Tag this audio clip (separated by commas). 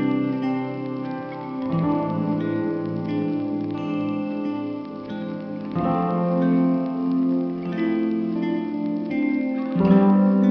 Music